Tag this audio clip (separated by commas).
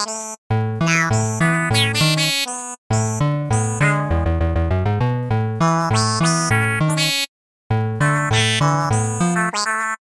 Music